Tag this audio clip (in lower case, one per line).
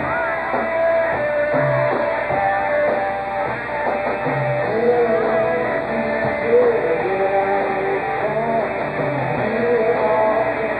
music